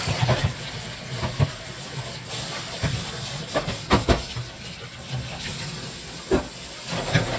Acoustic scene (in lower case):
kitchen